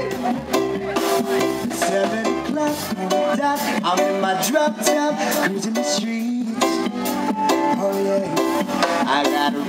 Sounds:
music

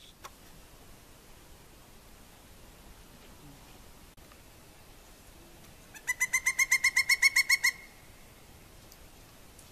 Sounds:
woodpecker pecking tree

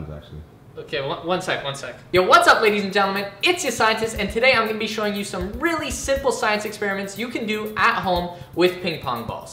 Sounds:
music, speech

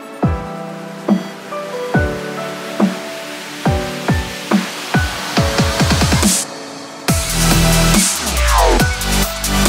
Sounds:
drum and bass

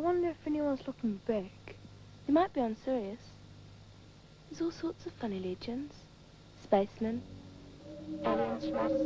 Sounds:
speech

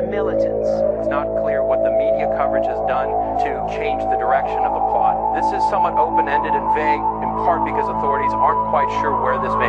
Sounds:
music, television, speech

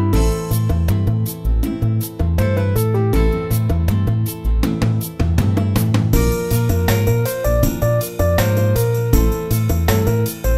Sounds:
music, theme music

